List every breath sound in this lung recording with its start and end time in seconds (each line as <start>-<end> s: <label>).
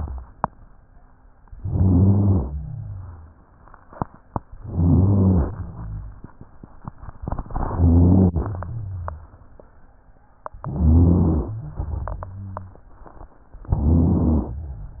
1.59-2.57 s: rhonchi
1.63-2.57 s: inhalation
2.59-3.46 s: exhalation
2.59-3.46 s: rhonchi
4.64-5.50 s: inhalation
4.64-5.50 s: rhonchi
5.52-6.33 s: exhalation
5.52-6.33 s: rhonchi
7.53-8.49 s: inhalation
7.53-8.49 s: rhonchi
8.55-9.42 s: exhalation
8.55-9.42 s: rhonchi
10.64-11.53 s: inhalation
10.64-11.53 s: rhonchi
11.54-12.83 s: exhalation
11.54-12.83 s: rhonchi
13.67-14.58 s: inhalation
13.67-14.58 s: rhonchi